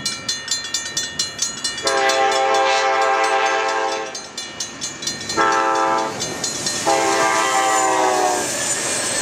Bell ringing followed by train horn honking repeatedly